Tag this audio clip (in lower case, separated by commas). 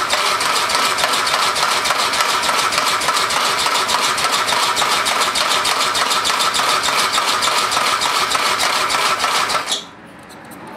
helicopter, engine